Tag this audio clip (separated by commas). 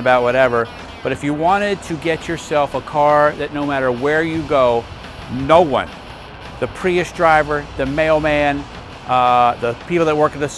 Music, Speech